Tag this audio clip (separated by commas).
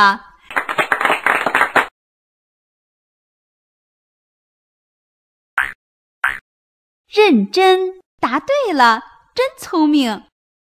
Speech